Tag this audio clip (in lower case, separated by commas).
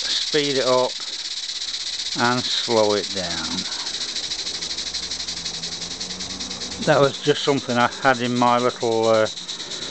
speech, engine, idling